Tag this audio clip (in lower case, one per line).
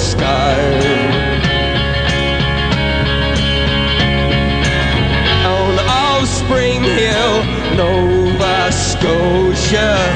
pop music
music
singing
rock and roll